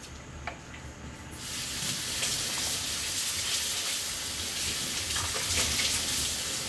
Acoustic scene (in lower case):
kitchen